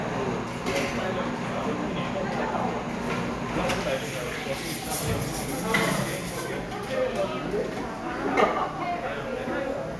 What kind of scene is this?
cafe